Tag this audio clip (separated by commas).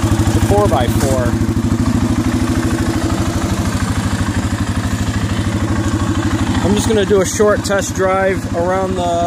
Speech